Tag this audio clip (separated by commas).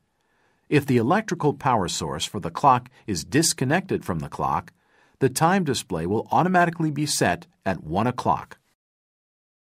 Speech